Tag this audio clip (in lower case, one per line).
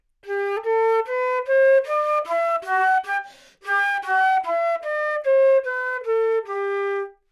music
wind instrument
musical instrument